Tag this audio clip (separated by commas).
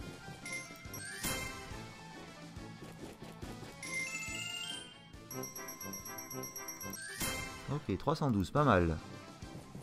slot machine